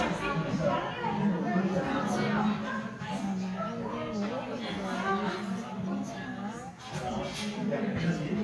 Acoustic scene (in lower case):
crowded indoor space